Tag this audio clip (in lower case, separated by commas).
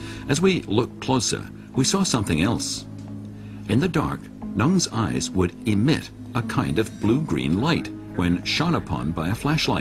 music, speech